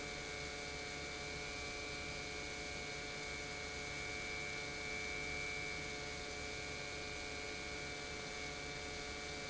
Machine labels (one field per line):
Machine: pump